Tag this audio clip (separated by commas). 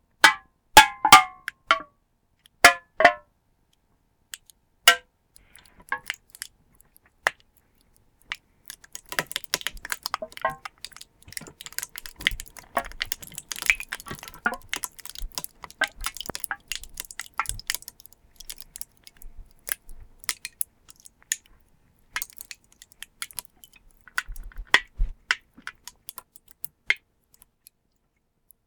Crushing